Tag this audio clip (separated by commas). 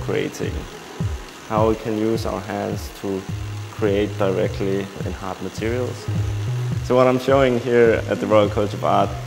Speech, Music